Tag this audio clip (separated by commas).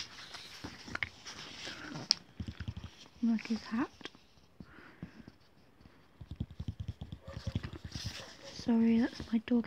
Speech